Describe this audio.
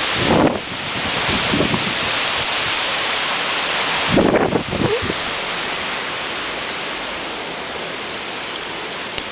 Strong wind against the microphone simultaneously with heavy rain.